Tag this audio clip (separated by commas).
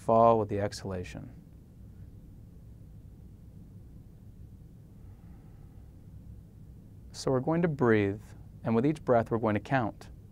Speech